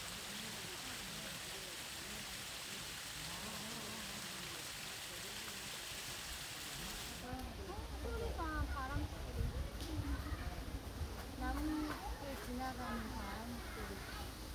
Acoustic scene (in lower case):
park